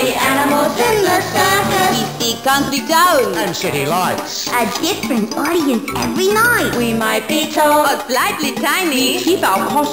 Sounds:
Music, Video game music

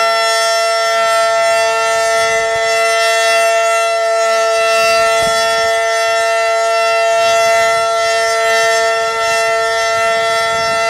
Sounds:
Civil defense siren, Siren

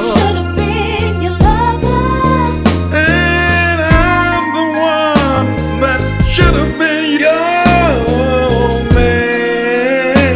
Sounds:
Music

